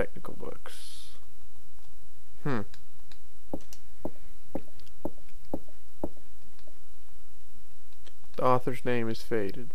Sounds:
speech

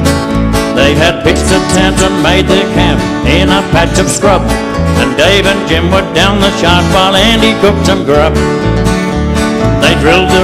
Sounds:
music

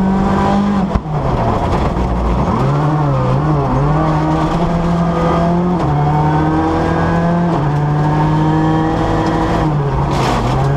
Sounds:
vehicle
car
medium engine (mid frequency)
accelerating

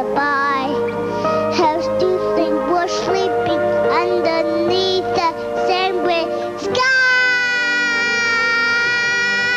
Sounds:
child singing
music

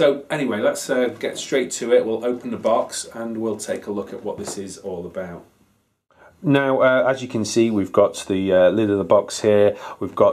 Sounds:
speech

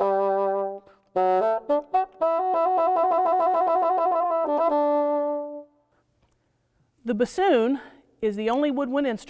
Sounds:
playing bassoon

